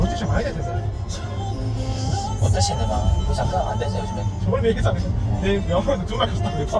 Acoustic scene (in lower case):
car